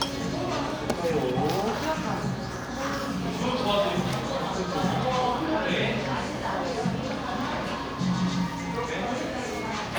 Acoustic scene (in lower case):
cafe